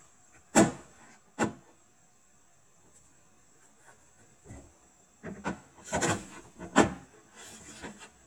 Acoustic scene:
kitchen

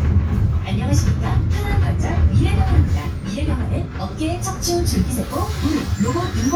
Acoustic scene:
bus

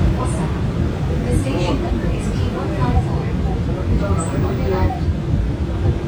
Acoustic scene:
subway train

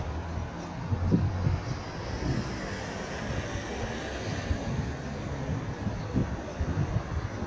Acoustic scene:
street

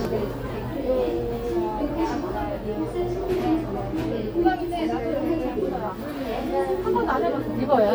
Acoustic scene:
crowded indoor space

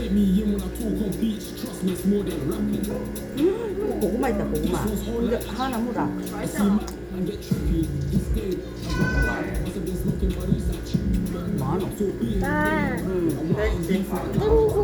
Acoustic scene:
restaurant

